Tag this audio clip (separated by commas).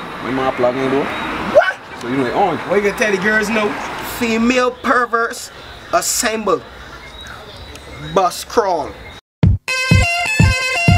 Music, Speech